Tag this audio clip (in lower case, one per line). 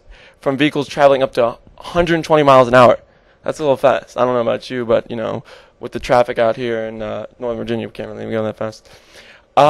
speech